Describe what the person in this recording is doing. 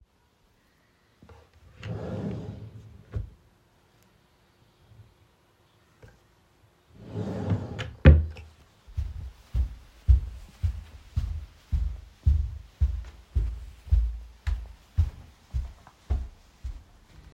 I opened a drawer and then closed it again. After that, footsteps are heard as I walked away.